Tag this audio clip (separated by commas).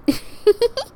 Laughter, Human voice, Giggle